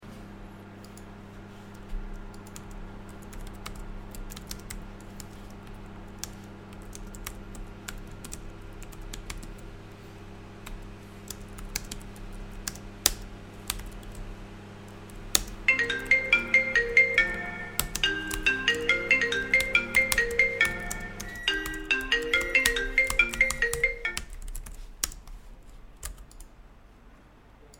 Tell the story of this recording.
I was working on my computer, typing on my keyboard, when my phone started ringing, and a second after it, my microwave, which was working in the background, started beeping. All three sounds were in parallel to each other for a brief period. After I ignored the microwave, letting it make a beeping noise, and put my phone on silent mode, I continued to work on my keyboard.